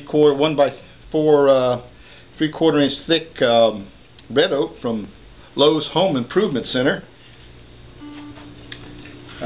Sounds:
Speech

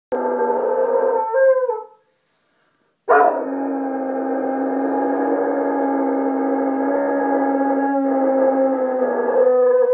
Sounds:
Animal, Howl, Dog, pets

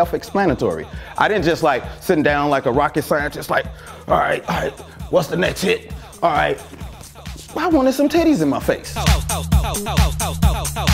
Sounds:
Speech, Music, Funk

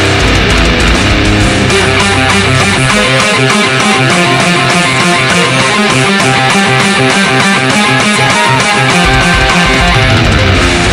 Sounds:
Electric guitar, Music, Plucked string instrument, Musical instrument, Strum

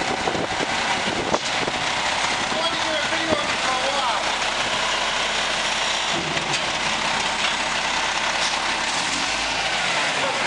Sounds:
Speech, Vehicle, Air brake, Truck

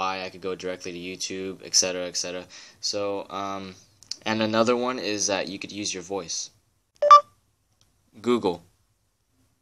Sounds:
Speech

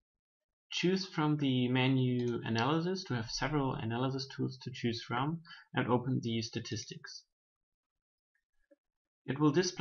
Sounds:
Speech

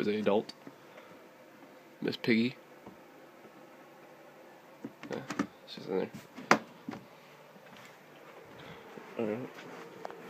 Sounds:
Speech

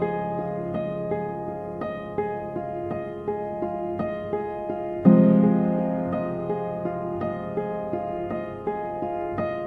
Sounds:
Music

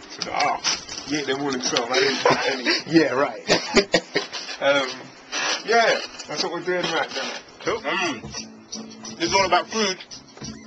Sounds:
inside a small room, Speech, Music

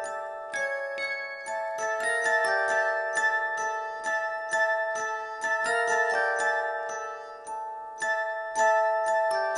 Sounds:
Music

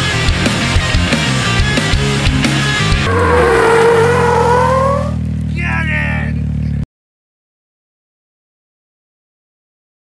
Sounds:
driving snowmobile

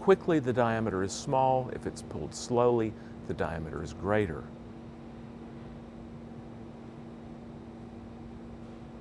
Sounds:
Speech

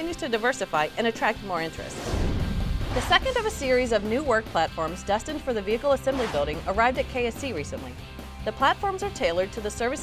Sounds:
Speech, Music

